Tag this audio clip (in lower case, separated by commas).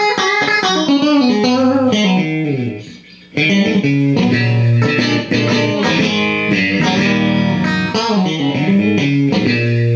guitar, musical instrument, music, plucked string instrument